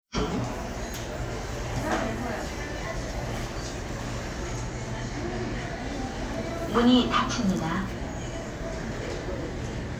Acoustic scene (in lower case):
elevator